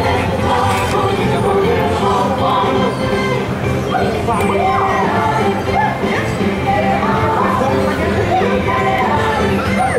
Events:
[0.00, 2.66] choir
[0.01, 9.95] music
[3.82, 6.25] choir
[6.48, 7.69] choir
[7.83, 9.95] choir

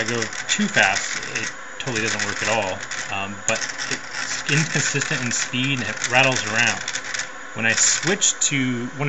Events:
[0.00, 1.47] gears
[0.00, 1.48] man speaking
[0.00, 9.05] mechanisms
[1.72, 3.10] gears
[1.79, 2.82] man speaking
[3.08, 3.57] man speaking
[3.45, 7.21] gears
[3.87, 3.96] human sounds
[4.46, 6.76] man speaking
[7.54, 9.05] man speaking
[7.70, 8.16] gears

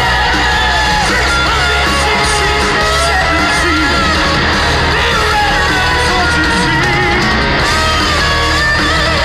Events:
[0.00, 4.18] male singing
[0.00, 9.24] crowd
[0.00, 9.24] music
[4.94, 7.60] male singing

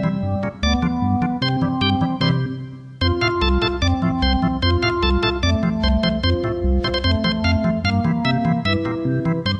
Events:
[0.00, 9.55] background noise
[0.00, 9.55] music

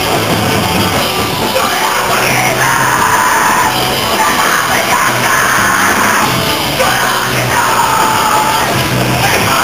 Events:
[0.00, 9.63] music
[1.36, 3.72] male singing
[1.41, 3.72] bellow
[4.11, 6.28] male singing
[4.19, 6.27] bellow
[6.70, 8.90] male singing
[6.76, 8.87] bellow
[9.21, 9.63] bellow
[9.21, 9.63] male singing

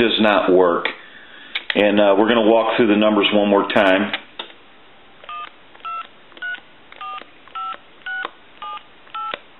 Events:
[0.00, 9.55] mechanisms
[1.02, 1.60] breathing
[1.79, 4.19] male speech
[9.21, 9.26] dtmf
[9.38, 9.46] clicking

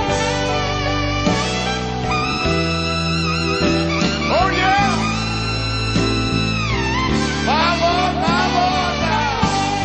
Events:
[0.00, 9.84] music
[4.24, 4.94] male speech
[7.51, 9.53] male speech

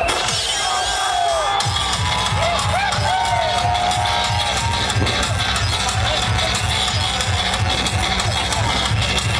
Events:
[0.00, 9.35] crowd
[0.00, 9.35] music
[0.40, 4.81] shout

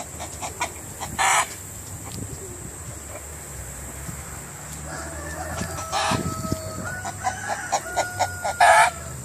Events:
[0.00, 9.24] insect
[0.00, 9.24] motor vehicle (road)
[0.00, 9.24] wind
[0.15, 0.72] chicken
[0.93, 1.50] chicken
[1.00, 1.32] wind noise (microphone)
[1.78, 1.96] generic impact sounds
[2.00, 2.46] wind noise (microphone)
[2.04, 2.21] tick
[2.21, 2.39] generic impact sounds
[2.34, 2.75] chicken
[3.01, 3.24] chicken
[4.61, 4.77] generic impact sounds
[4.83, 9.15] cock-a-doodle-doo
[5.46, 5.81] wind noise (microphone)
[5.49, 6.24] chicken
[5.55, 5.66] tick
[6.05, 6.94] wind noise (microphone)
[6.79, 7.31] chicken
[7.47, 8.02] chicken
[8.18, 8.91] chicken

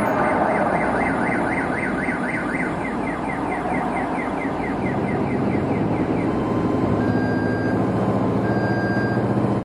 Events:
[0.00, 9.62] emergency vehicle
[0.00, 9.62] siren

